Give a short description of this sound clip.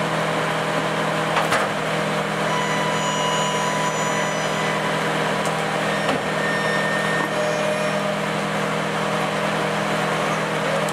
A vehicle is running and a mechanical lift sounds